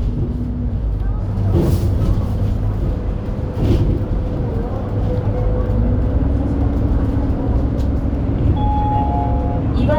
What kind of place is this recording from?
bus